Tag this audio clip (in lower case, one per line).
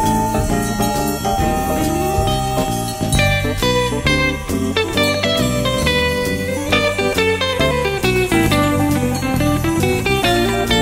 music